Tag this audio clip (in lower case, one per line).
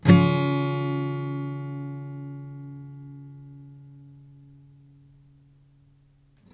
plucked string instrument
strum
guitar
music
musical instrument